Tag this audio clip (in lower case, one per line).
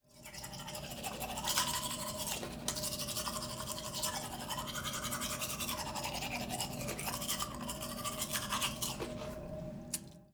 home sounds